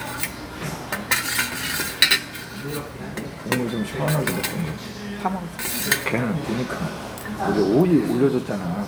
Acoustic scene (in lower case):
crowded indoor space